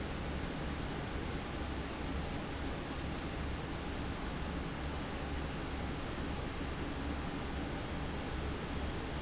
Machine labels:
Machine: fan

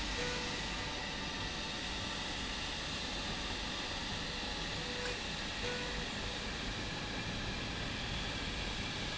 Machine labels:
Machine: slide rail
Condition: normal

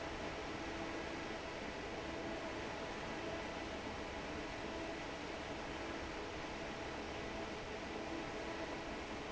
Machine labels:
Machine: fan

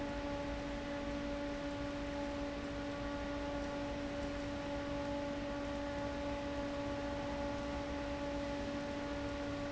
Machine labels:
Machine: fan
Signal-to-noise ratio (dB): 0 dB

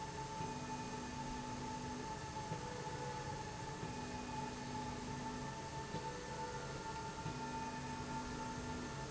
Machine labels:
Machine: slide rail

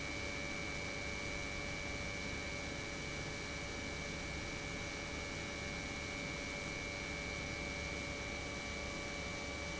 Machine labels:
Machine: pump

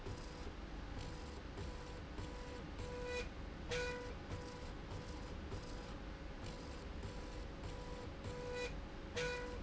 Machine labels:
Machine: slide rail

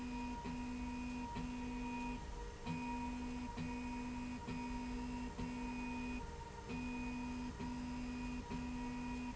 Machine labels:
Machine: slide rail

